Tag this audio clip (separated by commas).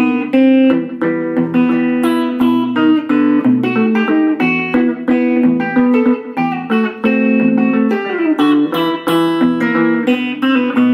Acoustic guitar, Plucked string instrument, Guitar, Music, Musical instrument